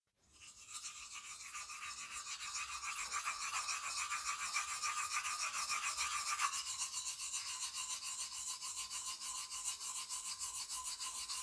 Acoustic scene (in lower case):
restroom